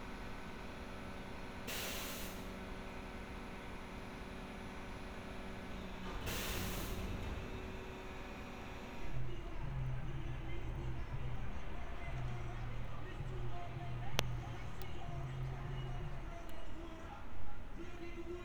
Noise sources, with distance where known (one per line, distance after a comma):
background noise